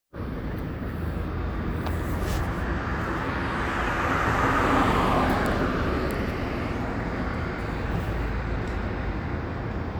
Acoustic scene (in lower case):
street